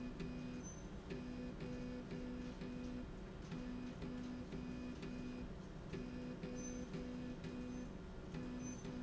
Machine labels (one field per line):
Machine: slide rail